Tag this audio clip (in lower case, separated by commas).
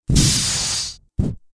fire